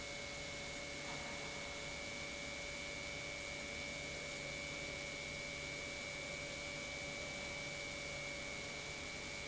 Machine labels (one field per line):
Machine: pump